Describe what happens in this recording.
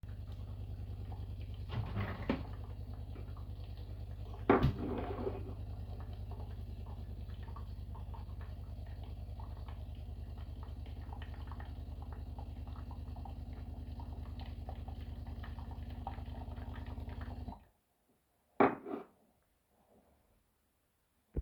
The coffee machine was running and during this I grabbed another cup. Then i moved the cup away from the coffee machine when it was finished.